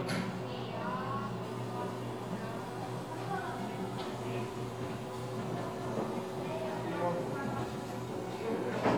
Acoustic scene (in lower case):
cafe